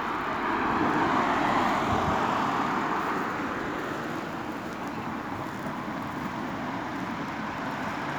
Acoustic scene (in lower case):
street